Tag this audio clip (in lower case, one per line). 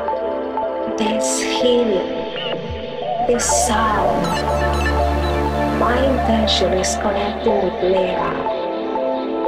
speech
music
sound effect